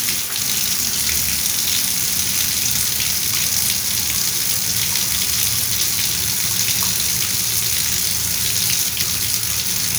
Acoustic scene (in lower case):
restroom